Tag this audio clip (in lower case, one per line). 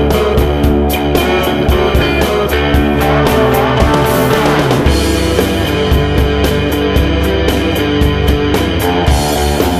music
rhythm and blues